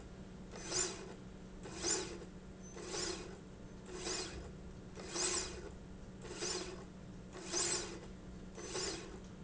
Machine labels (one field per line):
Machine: slide rail